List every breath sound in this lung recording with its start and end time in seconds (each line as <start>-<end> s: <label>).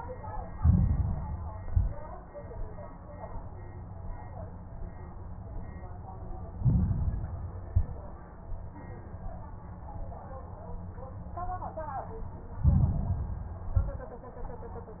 0.51-1.52 s: inhalation
0.51-1.52 s: crackles
1.52-2.07 s: exhalation
1.52-2.07 s: crackles
6.48-7.48 s: inhalation
6.48-7.48 s: crackles
7.68-8.23 s: exhalation
7.68-8.23 s: crackles
12.56-13.57 s: inhalation
12.56-13.57 s: crackles
13.72-14.27 s: exhalation
13.72-14.27 s: crackles